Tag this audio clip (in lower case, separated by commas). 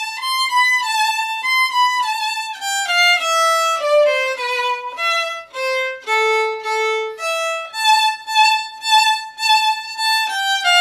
music, musical instrument, violin